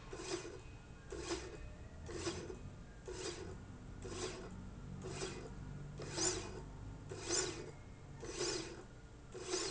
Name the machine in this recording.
slide rail